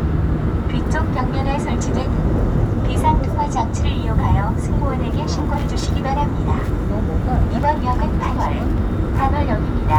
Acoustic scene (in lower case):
subway train